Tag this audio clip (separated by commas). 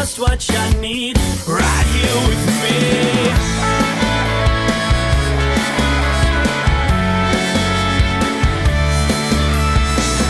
Music